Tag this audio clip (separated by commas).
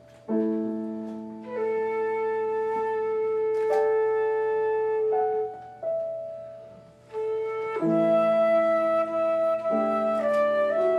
woodwind instrument, Flute